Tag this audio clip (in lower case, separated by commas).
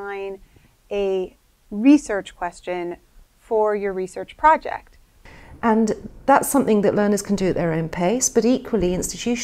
speech